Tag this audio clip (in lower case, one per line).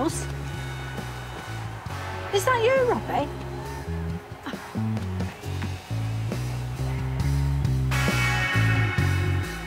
music
speech